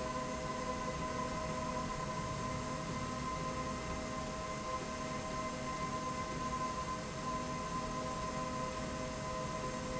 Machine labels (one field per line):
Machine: slide rail